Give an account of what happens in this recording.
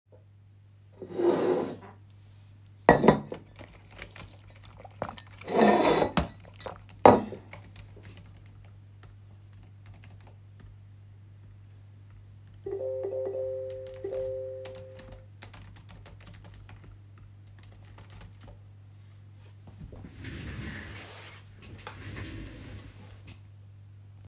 I get my cup of water from across the table and take a few sips while typing on the keyboard. Also while typing I get some notifications. Finally, I adjust my position on my desk chair.